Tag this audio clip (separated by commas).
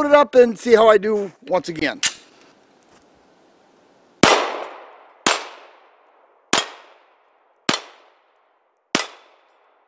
gunfire